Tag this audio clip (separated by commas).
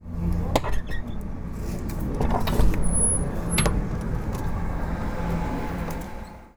Squeak